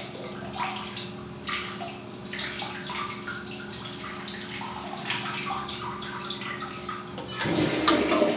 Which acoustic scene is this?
restroom